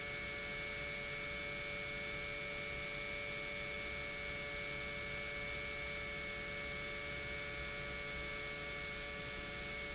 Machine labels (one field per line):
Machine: pump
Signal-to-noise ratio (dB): 6 dB